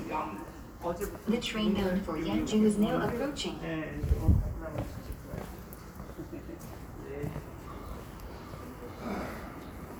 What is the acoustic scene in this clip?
subway station